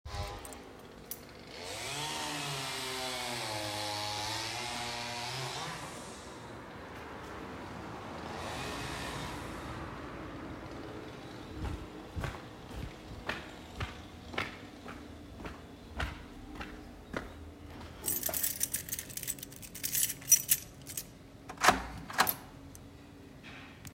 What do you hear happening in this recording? A chainsaw is running. I walk across the room, pick up the keys, and open the door.